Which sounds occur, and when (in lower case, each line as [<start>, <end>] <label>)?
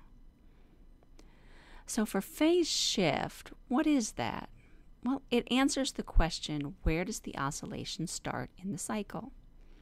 [0.00, 9.81] mechanisms
[0.36, 0.43] tick
[0.38, 0.87] breathing
[0.99, 1.26] tick
[1.26, 1.84] breathing
[1.88, 3.56] woman speaking
[3.69, 4.50] woman speaking
[4.53, 4.90] breathing
[5.03, 9.33] woman speaking
[6.10, 6.34] generic impact sounds
[6.59, 6.66] tick
[7.63, 7.72] tick
[8.44, 8.54] tick
[9.42, 9.51] tick
[9.59, 9.81] breathing